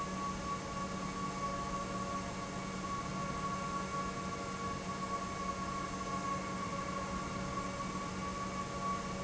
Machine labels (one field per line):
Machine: pump